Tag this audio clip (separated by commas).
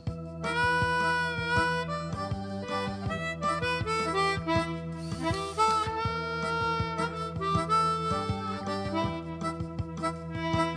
Music